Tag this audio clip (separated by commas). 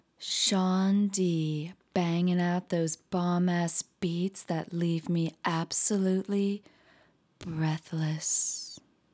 Speech, Human voice, Female speech